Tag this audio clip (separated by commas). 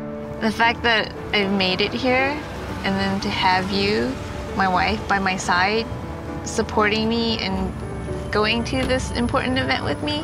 Speech, Music